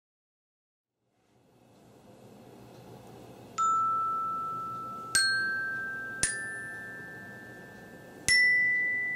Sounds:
playing glockenspiel

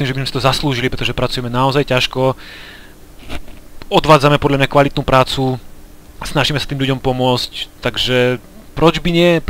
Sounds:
Speech

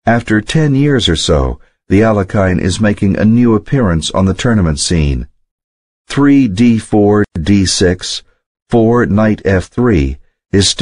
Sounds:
Speech

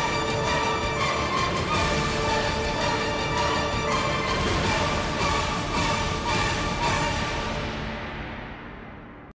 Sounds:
Music

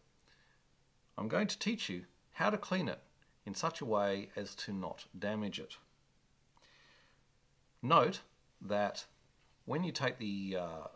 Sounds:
Speech

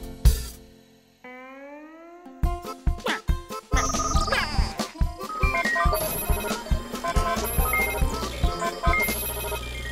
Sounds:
Music

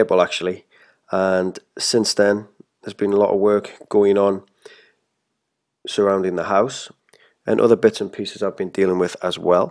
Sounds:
Speech

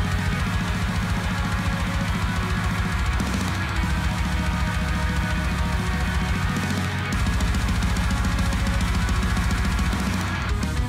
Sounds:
Musical instrument, Plucked string instrument, Guitar, Music

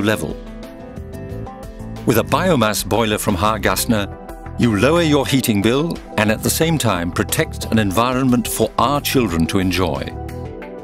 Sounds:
Speech, Music

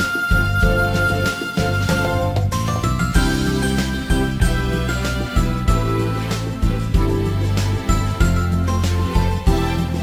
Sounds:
Music, Background music

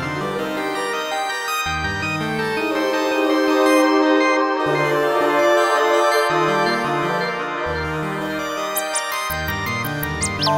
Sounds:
Music, Christmas music

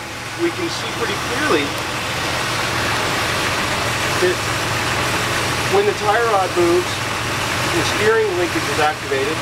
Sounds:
Vehicle, Engine, Speech

